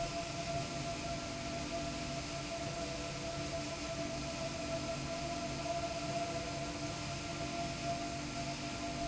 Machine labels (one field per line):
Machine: slide rail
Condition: normal